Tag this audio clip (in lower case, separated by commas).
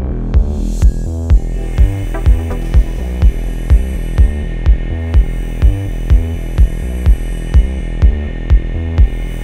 music, tools